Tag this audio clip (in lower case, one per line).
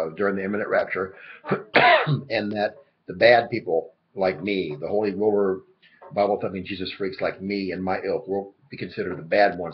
speech